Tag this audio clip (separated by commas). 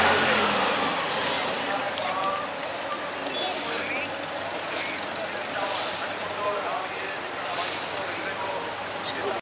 Air brake, Speech, Vehicle